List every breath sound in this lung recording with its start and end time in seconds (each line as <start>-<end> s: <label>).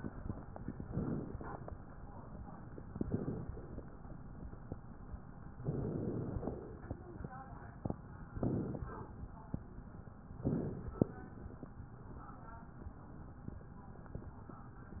0.84-1.36 s: inhalation
1.32-1.96 s: crackles
1.38-1.94 s: exhalation
2.86-3.41 s: crackles
2.87-3.47 s: inhalation
3.45-4.04 s: exhalation
3.46-4.10 s: crackles
5.58-6.36 s: inhalation
6.32-7.36 s: exhalation
8.35-8.87 s: inhalation
8.84-9.43 s: exhalation
10.42-10.95 s: inhalation
10.95-11.74 s: exhalation
10.95-11.74 s: crackles